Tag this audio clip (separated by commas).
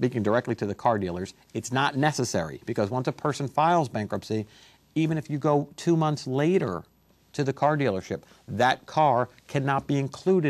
Speech